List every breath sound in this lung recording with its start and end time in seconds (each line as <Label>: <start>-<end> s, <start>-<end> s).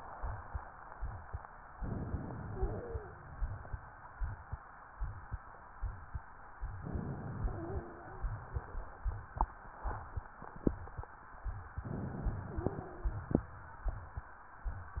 Inhalation: 1.77-2.49 s, 6.80-7.42 s, 11.81-12.50 s
Exhalation: 2.49-3.81 s, 7.43-8.25 s, 12.48-13.46 s
Wheeze: 2.53-3.15 s, 7.44-8.24 s, 12.47-13.23 s